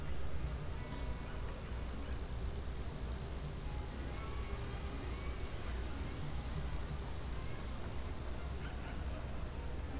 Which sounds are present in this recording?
background noise